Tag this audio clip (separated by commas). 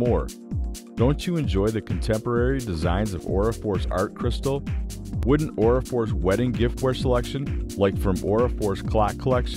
Speech, Music